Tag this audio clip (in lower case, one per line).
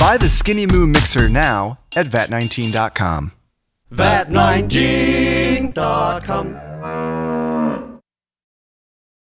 speech
music